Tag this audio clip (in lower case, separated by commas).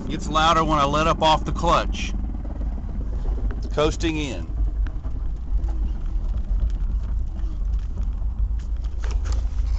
speech